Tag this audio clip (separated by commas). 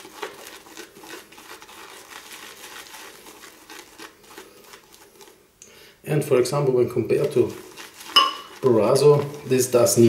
Speech